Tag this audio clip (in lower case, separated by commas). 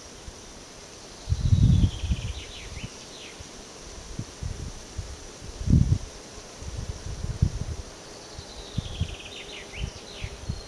animal